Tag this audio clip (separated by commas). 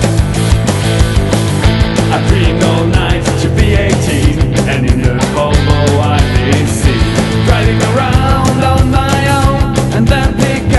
Exciting music, Music, Pop music, Soundtrack music